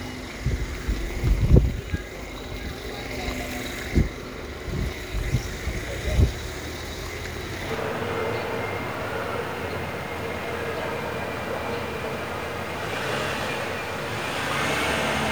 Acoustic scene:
residential area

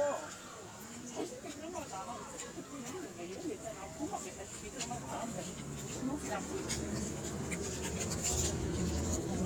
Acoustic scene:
park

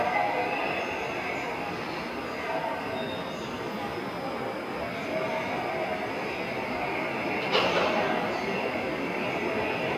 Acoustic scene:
subway station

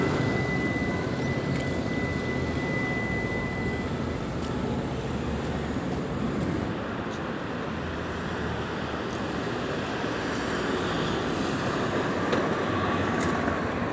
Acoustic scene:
street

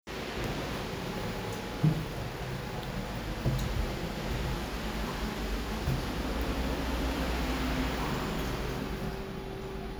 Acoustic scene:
elevator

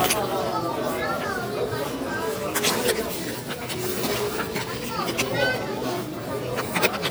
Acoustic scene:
crowded indoor space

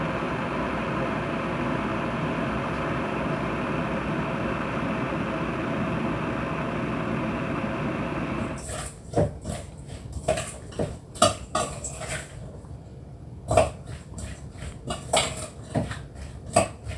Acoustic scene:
kitchen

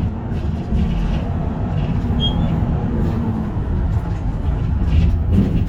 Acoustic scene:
bus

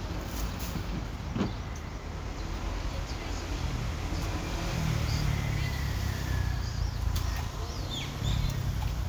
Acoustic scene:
residential area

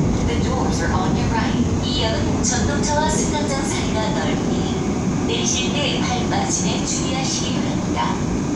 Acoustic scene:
subway train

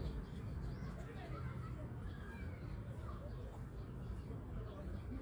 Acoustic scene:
park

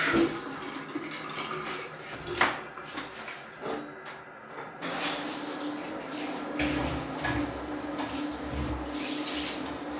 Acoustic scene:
restroom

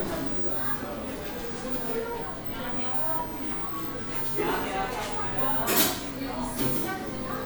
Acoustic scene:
cafe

